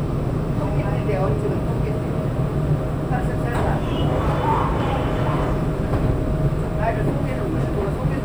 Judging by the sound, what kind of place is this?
subway train